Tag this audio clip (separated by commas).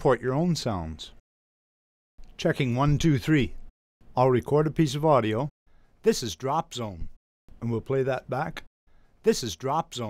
Speech